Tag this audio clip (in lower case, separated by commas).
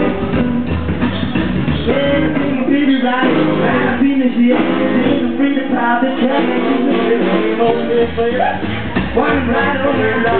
strum, musical instrument, rock and roll, plucked string instrument, background music, bass guitar, acoustic guitar, music, guitar